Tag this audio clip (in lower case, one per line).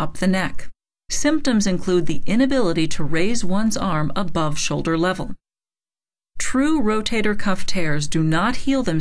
speech